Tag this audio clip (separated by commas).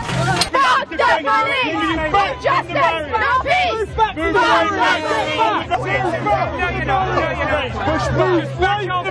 Speech